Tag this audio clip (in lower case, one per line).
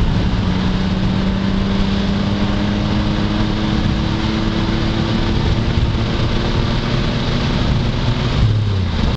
vehicle
car
motor vehicle (road)